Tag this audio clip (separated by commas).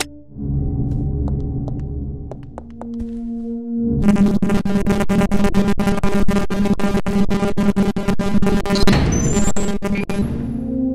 Music